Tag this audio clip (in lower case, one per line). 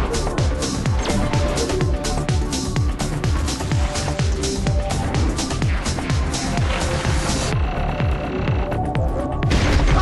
throbbing